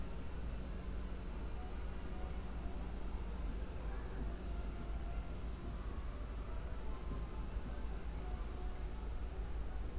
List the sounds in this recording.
music from a fixed source